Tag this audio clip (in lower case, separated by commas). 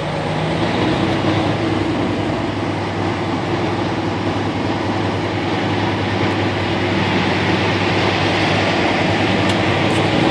vehicle, truck